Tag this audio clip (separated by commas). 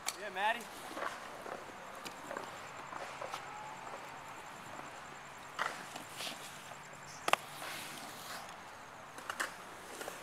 Speech, Skateboard